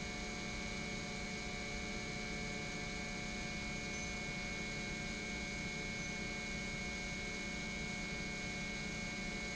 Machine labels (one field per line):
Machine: pump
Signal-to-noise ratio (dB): 0 dB